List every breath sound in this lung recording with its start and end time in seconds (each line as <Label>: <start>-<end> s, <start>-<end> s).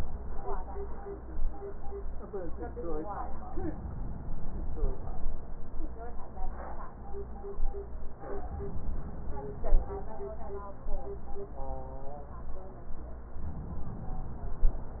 Inhalation: 3.55-5.05 s, 8.39-9.89 s